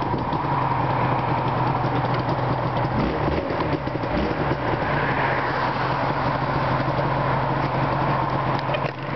A motorcycle revving while cars go by in the distance